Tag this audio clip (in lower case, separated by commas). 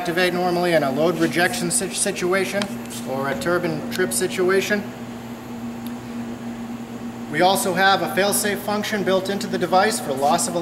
speech, inside a large room or hall